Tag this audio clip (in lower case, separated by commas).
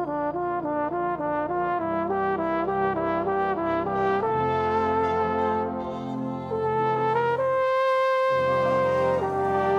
trumpet, music, musical instrument